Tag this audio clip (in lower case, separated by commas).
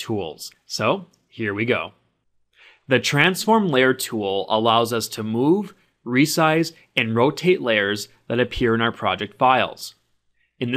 speech